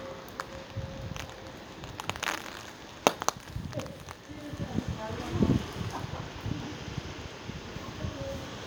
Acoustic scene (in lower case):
residential area